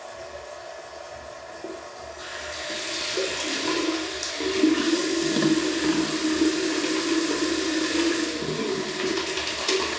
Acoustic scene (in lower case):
restroom